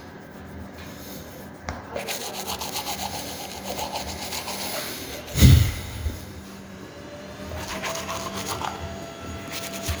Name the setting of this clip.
restroom